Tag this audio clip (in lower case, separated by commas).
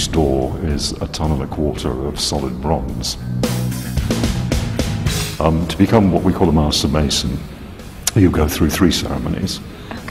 speech, music